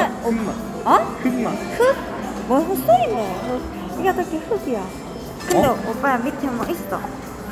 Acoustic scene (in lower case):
cafe